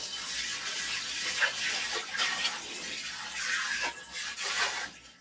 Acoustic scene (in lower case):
kitchen